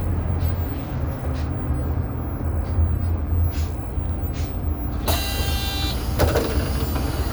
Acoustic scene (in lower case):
bus